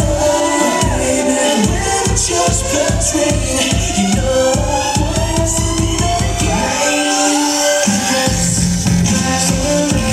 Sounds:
Dubstep, Music, Electronic music

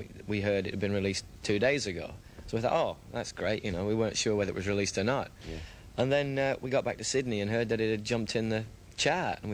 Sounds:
Speech

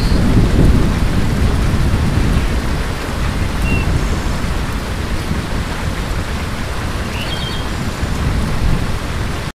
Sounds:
Rain on surface

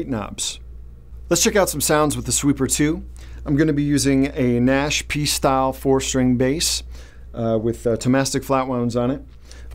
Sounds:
Speech

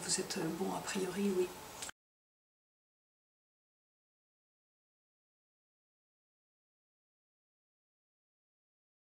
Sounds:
Speech

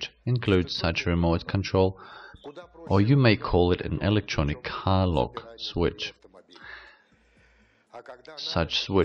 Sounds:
Speech

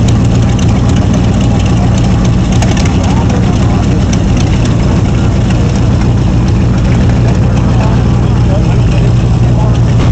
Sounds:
Speech, Vehicle, Truck

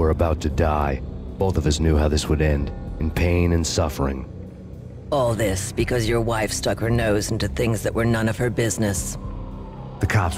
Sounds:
Speech, Music

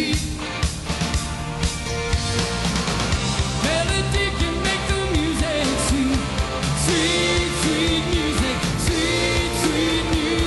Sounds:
Exciting music, Music

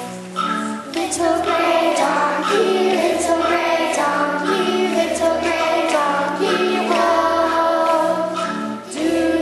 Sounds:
Music, Child singing, Choir

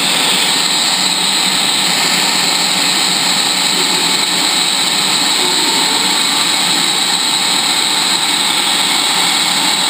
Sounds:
Engine

